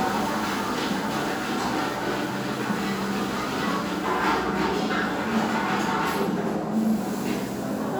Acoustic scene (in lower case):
restaurant